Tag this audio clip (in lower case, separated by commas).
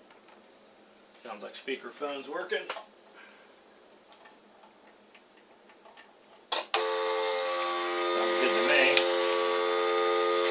speech